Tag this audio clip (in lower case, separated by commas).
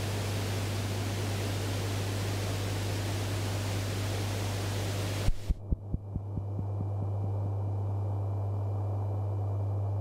white noise, pink noise